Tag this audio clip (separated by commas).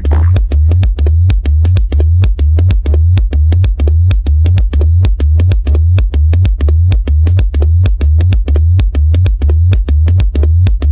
Music, Electronic dance music, Electronic music, Techno